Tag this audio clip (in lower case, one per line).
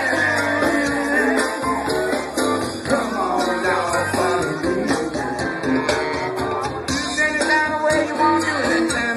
speech
music of latin america
music